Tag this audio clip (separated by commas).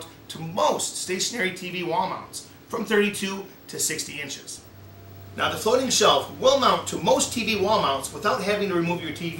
Speech